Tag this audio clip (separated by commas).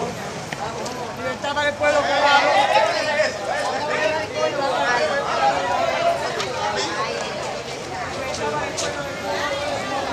Speech